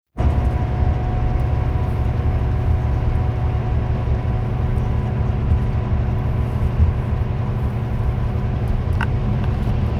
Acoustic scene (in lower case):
car